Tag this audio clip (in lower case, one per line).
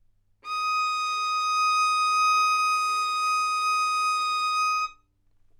musical instrument
bowed string instrument
music